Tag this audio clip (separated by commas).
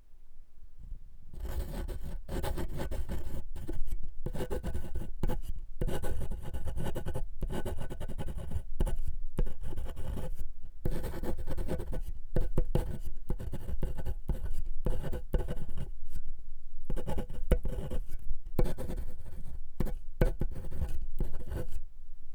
Writing, Domestic sounds